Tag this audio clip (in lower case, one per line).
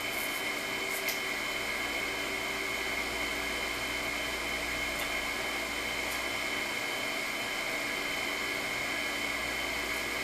inside a small room